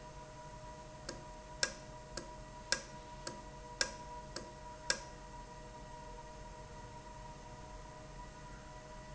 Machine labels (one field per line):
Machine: valve